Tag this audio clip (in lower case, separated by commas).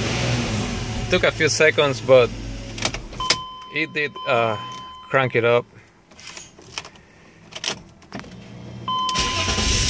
car, vehicle, motor vehicle (road), keys jangling, speech